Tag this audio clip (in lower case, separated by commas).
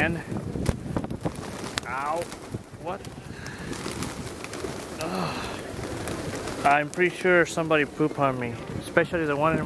coo, speech, bird